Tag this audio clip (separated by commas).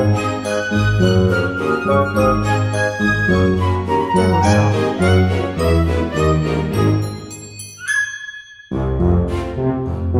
Music